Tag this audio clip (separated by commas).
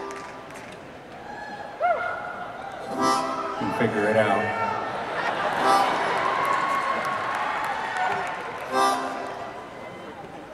Music, Speech